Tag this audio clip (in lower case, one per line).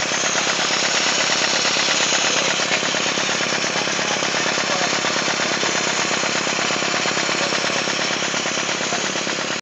engine
speech